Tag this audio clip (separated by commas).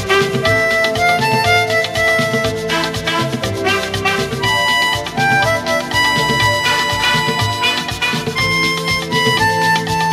playing harmonica